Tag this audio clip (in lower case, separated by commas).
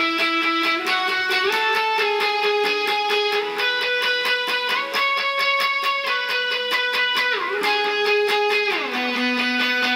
musical instrument, strum, plucked string instrument, music, guitar